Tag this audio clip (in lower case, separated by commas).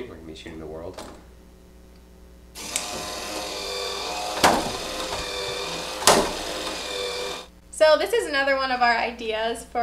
gears, ratchet, mechanisms